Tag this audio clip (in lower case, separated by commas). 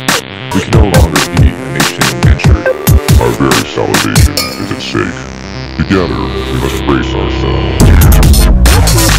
music, dubstep, electronic music